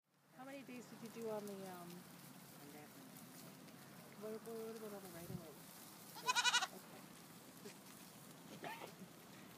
Sheep bleating with female voice in the background